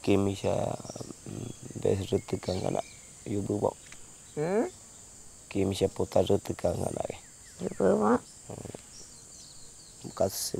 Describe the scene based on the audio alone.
Two men speaking with birds chirping in the background